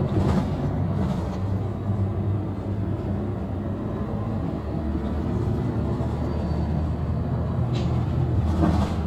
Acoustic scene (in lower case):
bus